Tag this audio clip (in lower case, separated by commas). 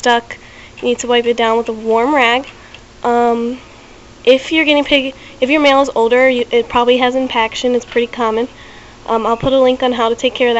speech